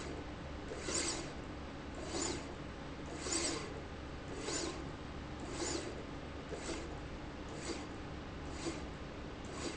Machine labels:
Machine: slide rail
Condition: abnormal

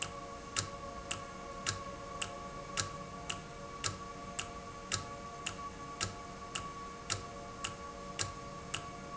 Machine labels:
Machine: valve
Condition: normal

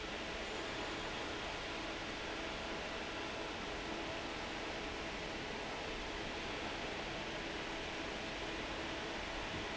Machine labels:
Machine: fan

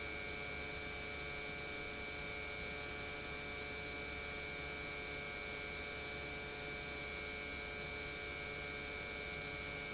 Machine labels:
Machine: pump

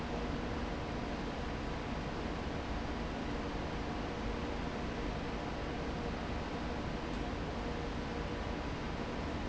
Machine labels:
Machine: fan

